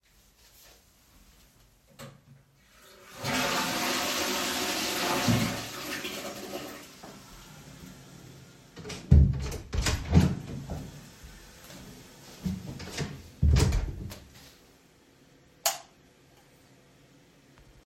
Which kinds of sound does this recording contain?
toilet flushing, door, light switch